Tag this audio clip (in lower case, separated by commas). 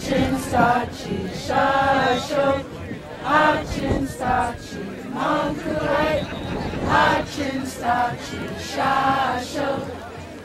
speech, music